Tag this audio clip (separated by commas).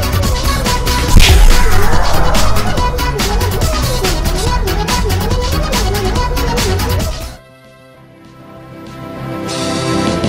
Music